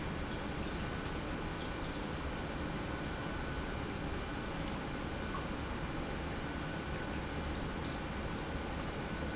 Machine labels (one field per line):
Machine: pump